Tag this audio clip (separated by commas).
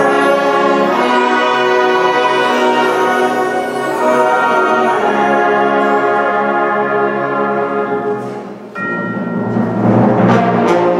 Music, Orchestra